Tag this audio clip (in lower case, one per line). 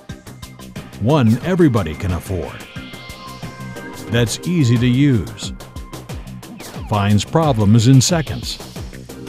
speech
music